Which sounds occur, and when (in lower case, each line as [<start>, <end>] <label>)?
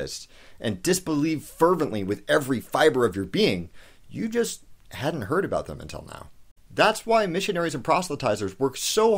[0.00, 0.26] male speech
[0.00, 9.15] background noise
[0.30, 0.61] breathing
[0.59, 1.41] male speech
[1.59, 3.68] male speech
[3.69, 4.02] breathing
[4.13, 4.59] male speech
[4.90, 6.32] male speech
[6.75, 9.15] male speech